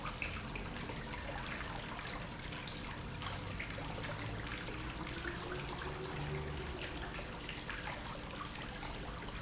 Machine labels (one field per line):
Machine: pump